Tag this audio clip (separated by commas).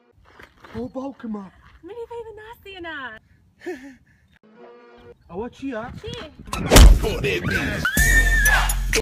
Speech, Music